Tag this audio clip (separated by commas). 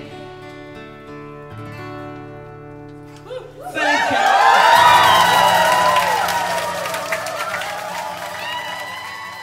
singing choir